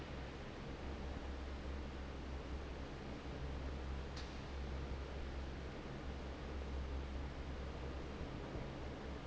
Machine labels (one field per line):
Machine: fan